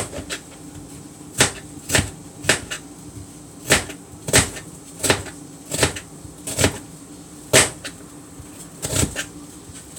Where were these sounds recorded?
in a kitchen